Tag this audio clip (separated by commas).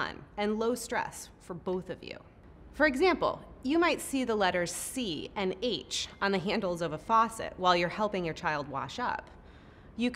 Speech